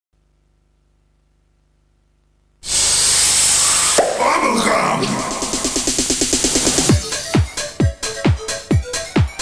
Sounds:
Techno

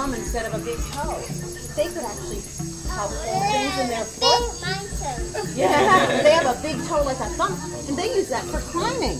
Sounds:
inside a small room, Speech

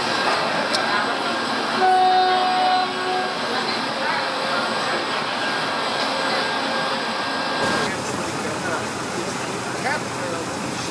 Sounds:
Vehicle, Rail transport, Train

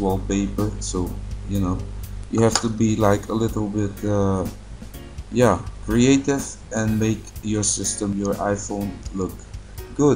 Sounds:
Speech, Music

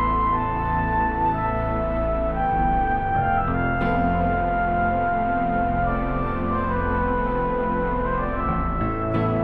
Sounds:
Music, Theme music

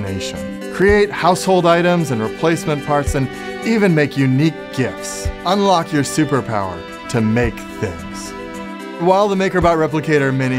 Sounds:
Speech, Music

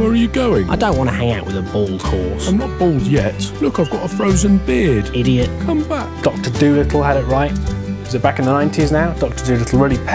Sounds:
Speech, Music

